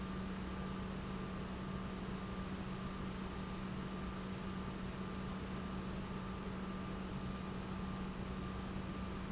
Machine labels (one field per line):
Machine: pump